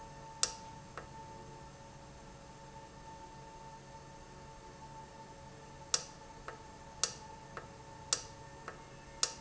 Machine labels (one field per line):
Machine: valve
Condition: normal